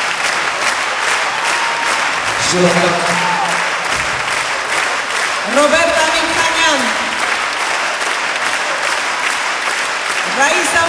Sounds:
applause, people clapping

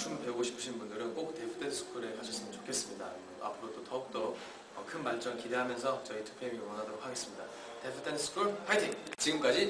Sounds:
speech

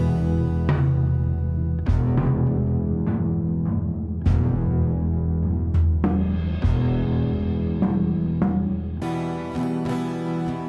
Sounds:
timpani, music

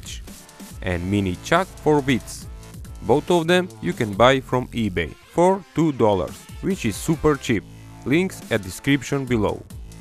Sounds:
music, speech

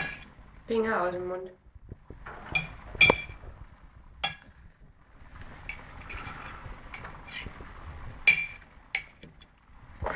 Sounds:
people eating noodle

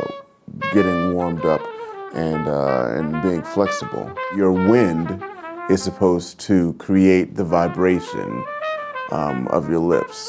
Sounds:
trumpet, musical instrument, music, speech

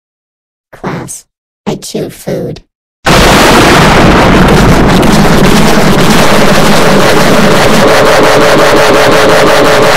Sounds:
speech, eruption

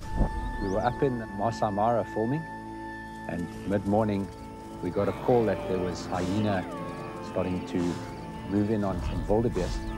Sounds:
speech, music

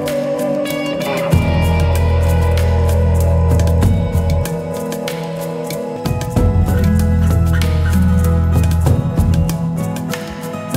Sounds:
music

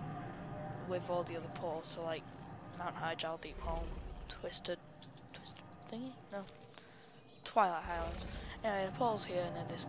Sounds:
speech

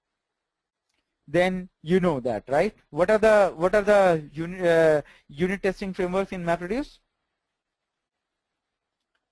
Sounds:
speech

